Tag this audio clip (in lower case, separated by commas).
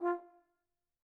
music, musical instrument, brass instrument